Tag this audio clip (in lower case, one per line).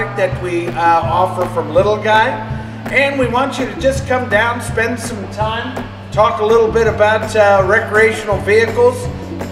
music
speech